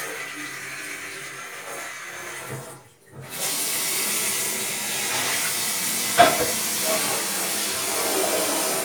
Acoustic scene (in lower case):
kitchen